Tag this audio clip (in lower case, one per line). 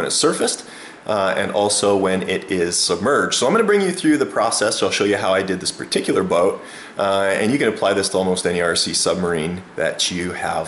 speech